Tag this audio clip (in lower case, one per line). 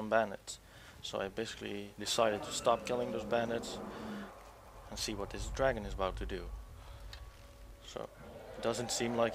speech